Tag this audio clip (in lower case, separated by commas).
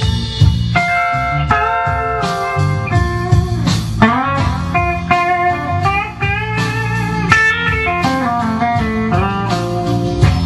music, musical instrument, inside a small room, plucked string instrument, guitar